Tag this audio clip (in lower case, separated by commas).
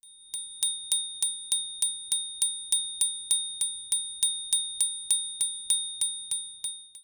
bicycle, vehicle, bell, bicycle bell, alarm